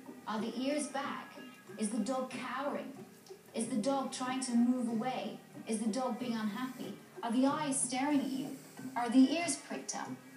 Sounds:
speech

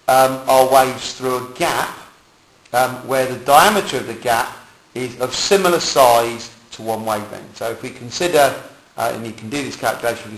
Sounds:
speech

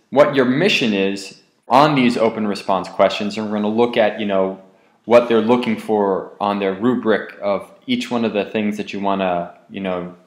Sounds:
speech

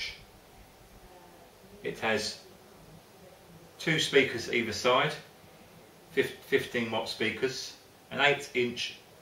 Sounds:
speech

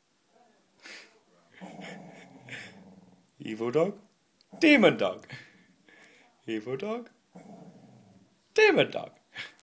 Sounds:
speech

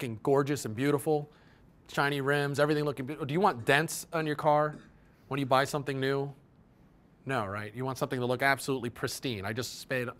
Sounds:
speech

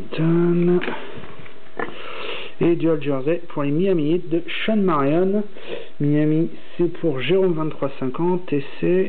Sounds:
inside a small room
speech

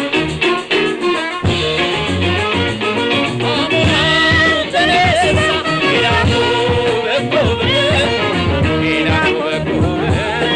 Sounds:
singing

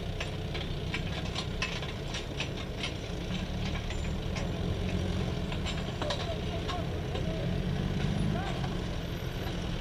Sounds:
speech

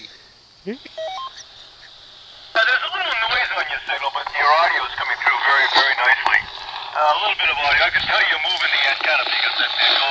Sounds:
radio
outside, rural or natural
speech

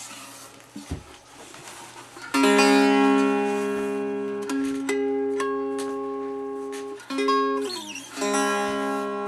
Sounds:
musical instrument
music
strum
plucked string instrument
guitar

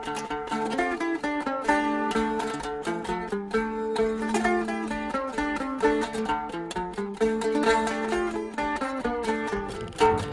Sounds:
music

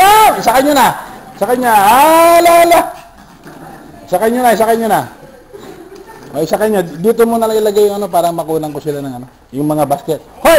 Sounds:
speech

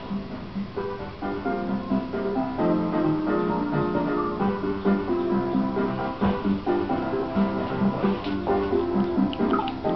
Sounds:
music

